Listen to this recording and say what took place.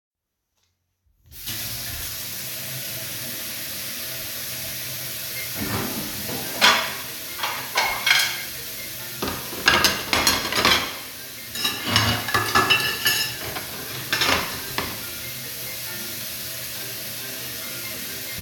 The phone is placed on the kitchen counter. Water is running in the sink while I move dishes and cutlery. During this activity a phone starts ringing nearby creating overlapping sounds.